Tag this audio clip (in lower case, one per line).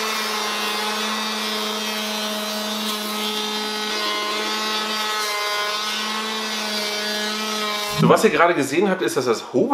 planing timber